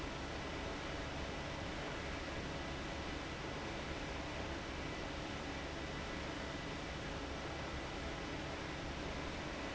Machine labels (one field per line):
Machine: fan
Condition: abnormal